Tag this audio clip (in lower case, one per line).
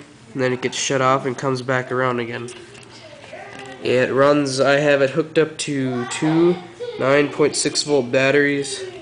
speech